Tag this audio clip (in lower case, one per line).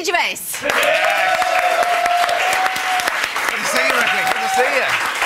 speech